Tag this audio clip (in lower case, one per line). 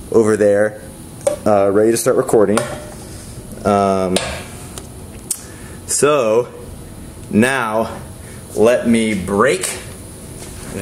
speech